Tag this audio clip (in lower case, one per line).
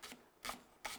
home sounds